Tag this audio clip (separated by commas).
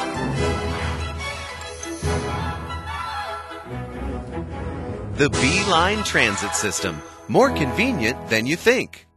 Speech, Music